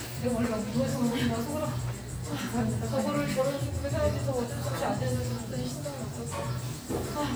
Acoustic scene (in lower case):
cafe